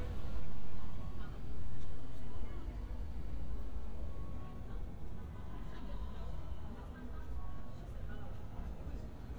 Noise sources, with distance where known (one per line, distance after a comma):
person or small group talking, far